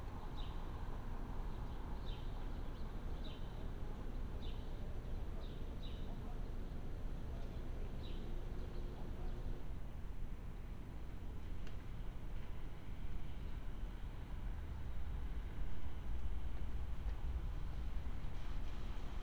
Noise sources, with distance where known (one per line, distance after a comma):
engine of unclear size